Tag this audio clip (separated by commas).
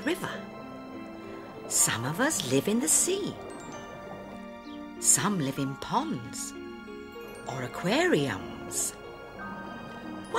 Music, Speech